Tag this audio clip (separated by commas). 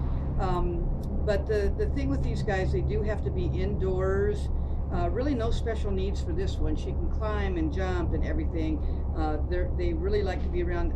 Speech